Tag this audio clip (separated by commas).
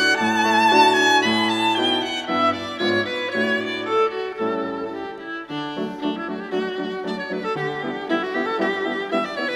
Music, fiddle, Musical instrument